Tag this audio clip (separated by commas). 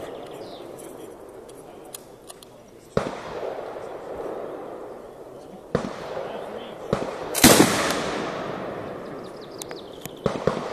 Fireworks, Speech